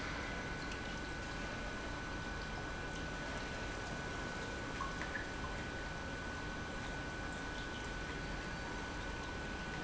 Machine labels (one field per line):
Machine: pump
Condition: normal